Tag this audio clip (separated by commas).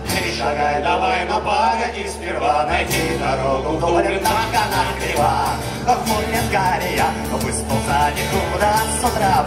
Music